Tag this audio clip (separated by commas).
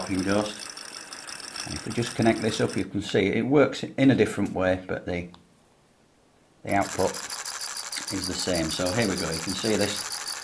inside a small room, Speech